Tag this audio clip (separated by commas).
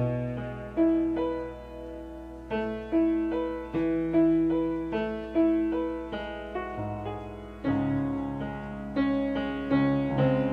Music